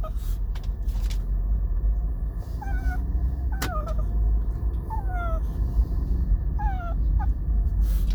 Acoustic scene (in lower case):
car